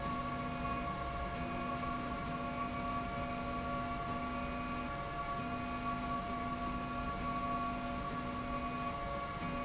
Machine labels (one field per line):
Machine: slide rail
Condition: normal